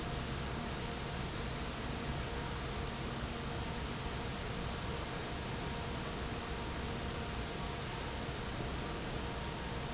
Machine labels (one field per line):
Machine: fan